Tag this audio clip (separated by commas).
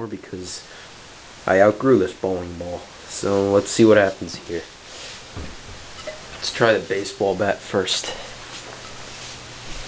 Speech, Smash